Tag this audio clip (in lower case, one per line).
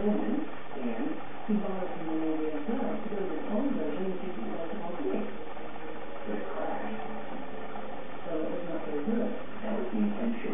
speech